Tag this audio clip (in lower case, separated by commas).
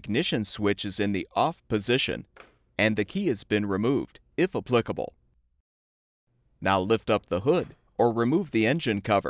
speech